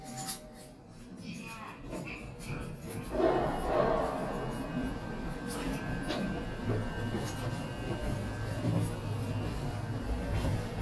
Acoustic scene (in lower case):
elevator